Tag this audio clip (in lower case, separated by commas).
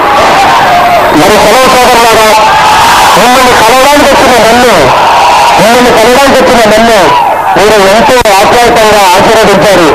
monologue, male speech, speech